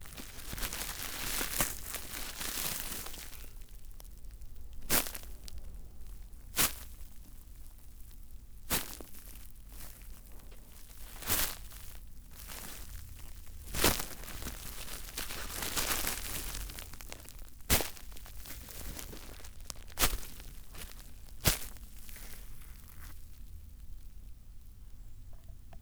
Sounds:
crumpling

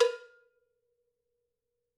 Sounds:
bell, cowbell

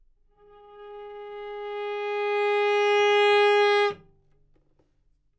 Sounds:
music, bowed string instrument, musical instrument

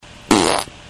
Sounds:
fart

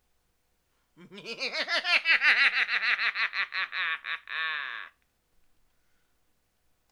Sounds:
laughter, human voice

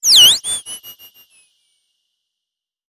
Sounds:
animal

